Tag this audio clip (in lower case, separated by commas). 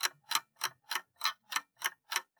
clock, mechanisms